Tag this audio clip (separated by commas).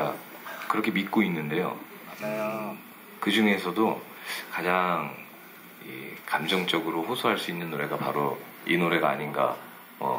Speech